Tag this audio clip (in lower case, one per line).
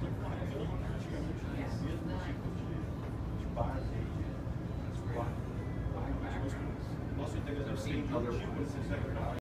speech